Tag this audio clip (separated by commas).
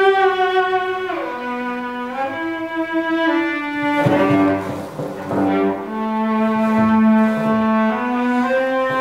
playing cello